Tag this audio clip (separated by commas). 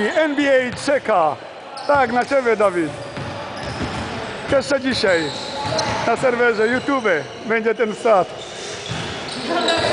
Speech